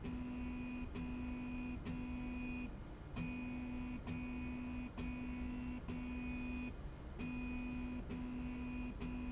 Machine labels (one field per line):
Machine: slide rail